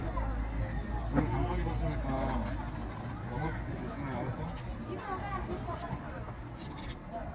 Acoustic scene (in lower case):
park